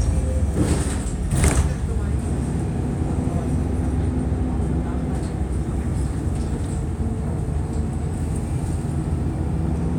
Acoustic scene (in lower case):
bus